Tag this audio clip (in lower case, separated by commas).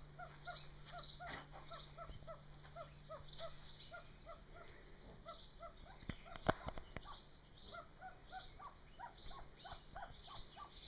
pheasant crowing